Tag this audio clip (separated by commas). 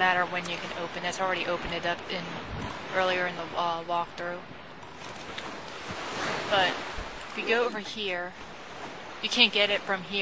Speech